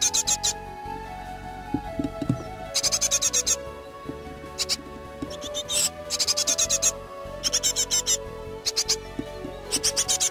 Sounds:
black capped chickadee calling

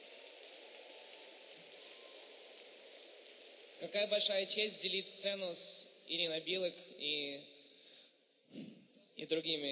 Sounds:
speech

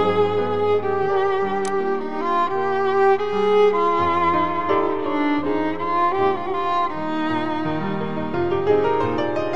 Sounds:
music, musical instrument, violin

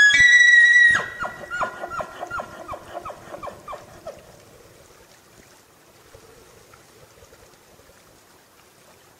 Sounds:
elk bugling

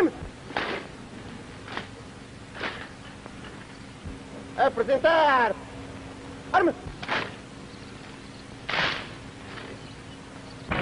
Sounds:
male speech, speech, monologue

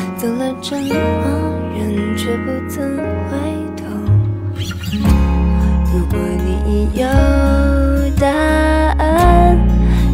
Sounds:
new-age music, background music, music

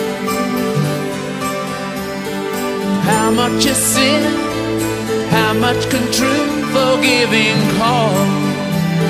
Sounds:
music, tender music

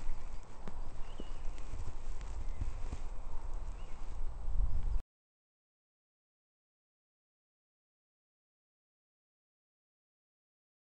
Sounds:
silence, outside, rural or natural

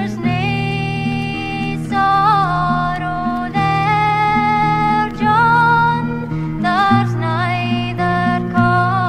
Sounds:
music, folk music

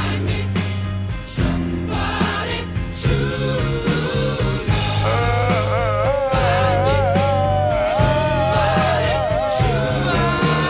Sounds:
music, crying

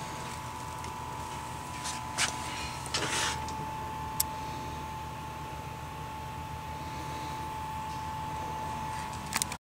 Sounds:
engine

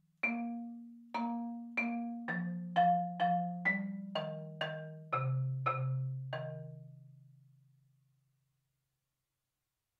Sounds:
mallet percussion, glockenspiel, xylophone

